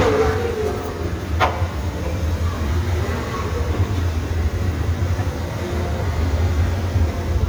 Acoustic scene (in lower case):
subway station